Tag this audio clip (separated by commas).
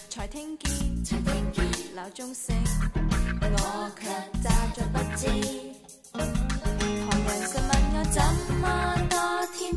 Jazz, Music, Funny music